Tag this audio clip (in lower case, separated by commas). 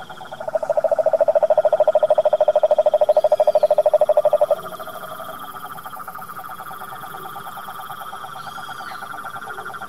frog croaking